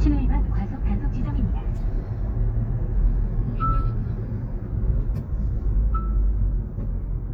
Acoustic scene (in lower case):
car